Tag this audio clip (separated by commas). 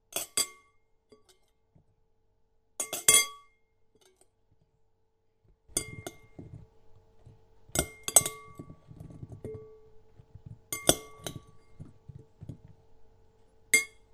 Chink, Glass